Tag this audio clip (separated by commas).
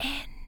Human voice, Whispering